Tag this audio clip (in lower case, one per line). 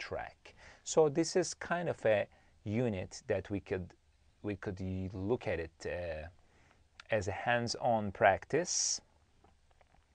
speech